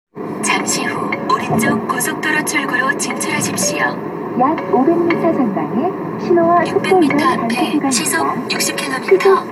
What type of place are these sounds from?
car